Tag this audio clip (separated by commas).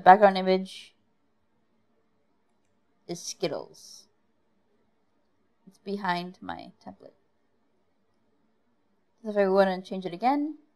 Narration